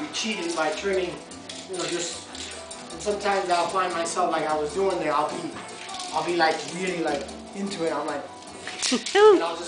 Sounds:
Speech

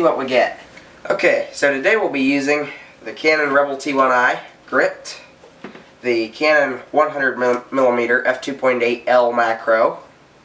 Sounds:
Speech

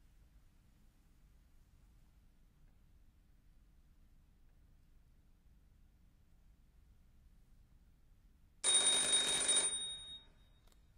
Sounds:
Silence

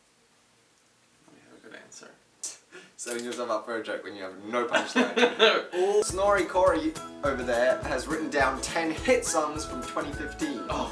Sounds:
Music, Speech

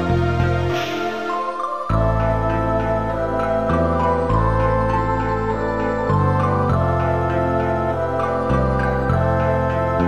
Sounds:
Music, New-age music

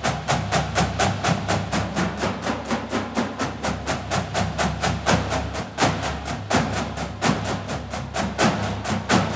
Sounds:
Percussion, Drum

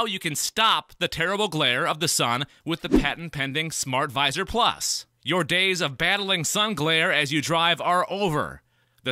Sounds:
Speech

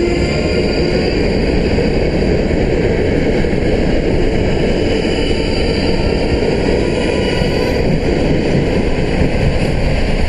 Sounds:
Vehicle

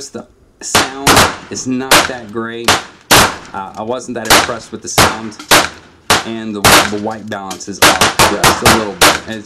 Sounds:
Gunshot

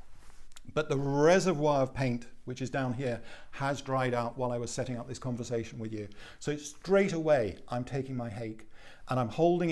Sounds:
Speech

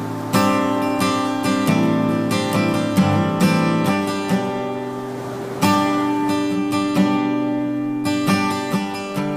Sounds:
Music, Acoustic guitar

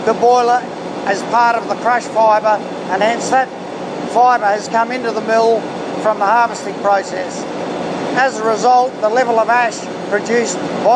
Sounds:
Speech, inside a large room or hall

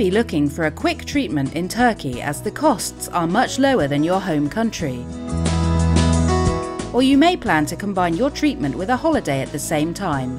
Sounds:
Music, Speech

